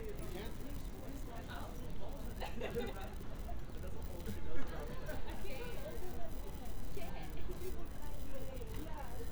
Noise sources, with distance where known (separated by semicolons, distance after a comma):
person or small group talking